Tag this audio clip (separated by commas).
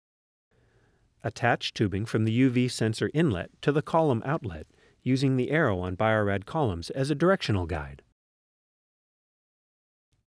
Speech